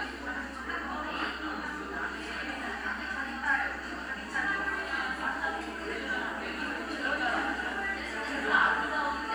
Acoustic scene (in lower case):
crowded indoor space